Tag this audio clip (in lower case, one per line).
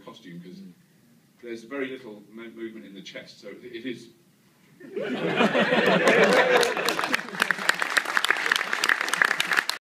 speech